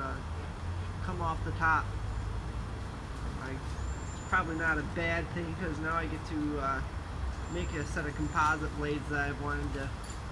A person talks in the distance at moderate volume